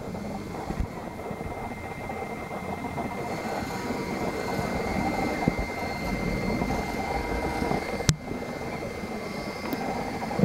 Electronic radio noise is emitted